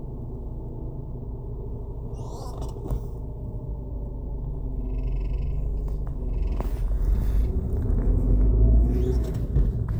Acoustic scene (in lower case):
car